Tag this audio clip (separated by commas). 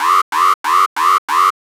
Alarm